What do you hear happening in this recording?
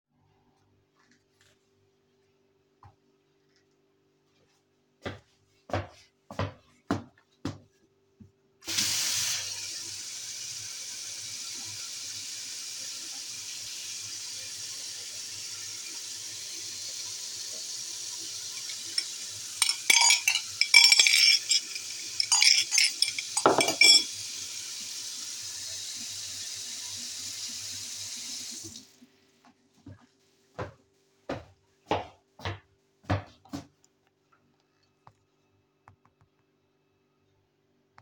wakled to the kitchen,sink;turn on running water;move a cup and spooon;turn off running water